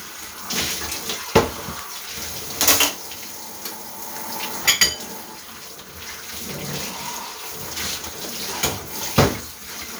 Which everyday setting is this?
kitchen